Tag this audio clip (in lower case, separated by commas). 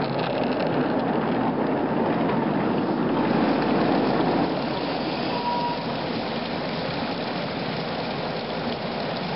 vehicle, rail transport, train